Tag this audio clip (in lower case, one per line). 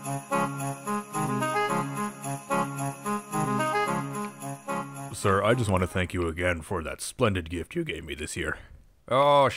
music
speech